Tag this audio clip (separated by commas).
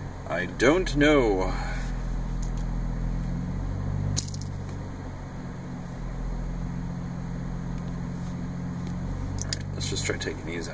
Car, Vehicle, Speech